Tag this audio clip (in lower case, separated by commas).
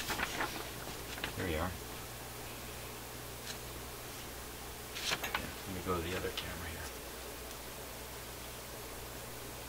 inside a small room, speech